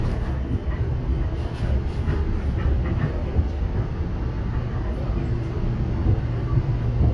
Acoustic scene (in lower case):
subway train